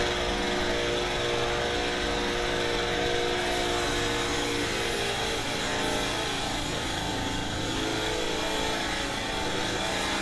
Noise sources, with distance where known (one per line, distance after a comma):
unidentified powered saw, near